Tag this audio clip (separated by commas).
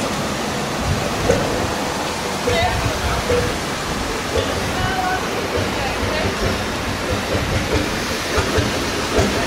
Speech, Boat, Vehicle, outside, rural or natural